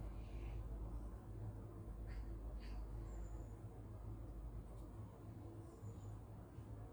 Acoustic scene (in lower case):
park